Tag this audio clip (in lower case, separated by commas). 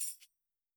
percussion, music, musical instrument, tambourine